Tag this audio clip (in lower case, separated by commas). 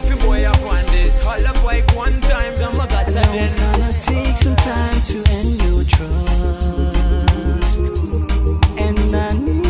music